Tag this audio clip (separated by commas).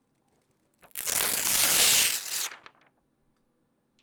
Tearing